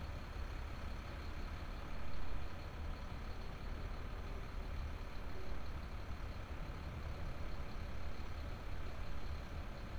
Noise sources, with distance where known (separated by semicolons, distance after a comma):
large-sounding engine